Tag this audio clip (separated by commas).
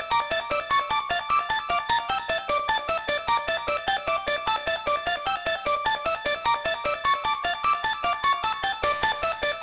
Music